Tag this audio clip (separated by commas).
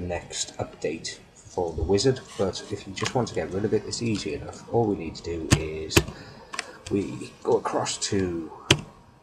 Speech, Typing